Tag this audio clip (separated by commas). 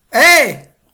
Human voice, Shout